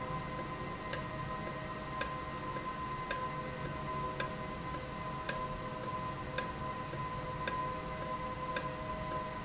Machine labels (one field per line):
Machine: valve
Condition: normal